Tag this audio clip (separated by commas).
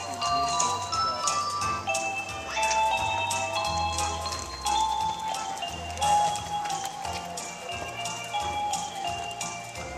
horse neighing, Animal, whinny, Music, Speech, Horse